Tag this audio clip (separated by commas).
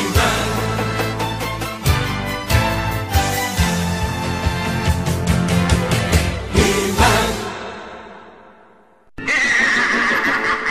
Music